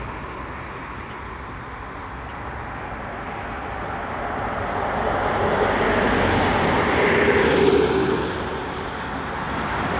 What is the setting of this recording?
street